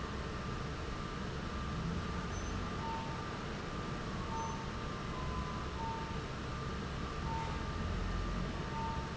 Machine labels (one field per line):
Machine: fan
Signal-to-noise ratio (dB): -6 dB